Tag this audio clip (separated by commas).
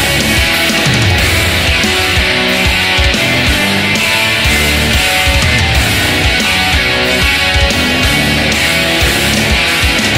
Rock music, Music